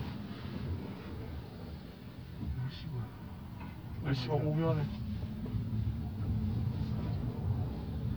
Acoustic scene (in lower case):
car